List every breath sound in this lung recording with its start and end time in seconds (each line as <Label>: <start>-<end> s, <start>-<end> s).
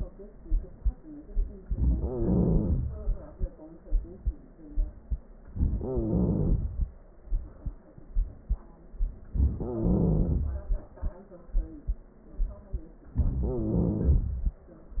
Wheeze: 2.03-2.93 s, 5.81-6.61 s, 9.62-10.47 s, 13.43-14.27 s